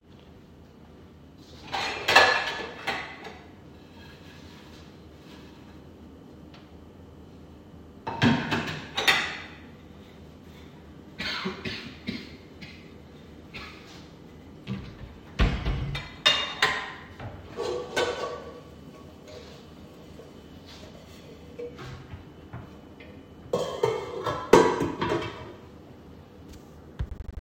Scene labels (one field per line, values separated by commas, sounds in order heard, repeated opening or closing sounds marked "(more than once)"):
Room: bedroom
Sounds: cutlery and dishes, wardrobe or drawer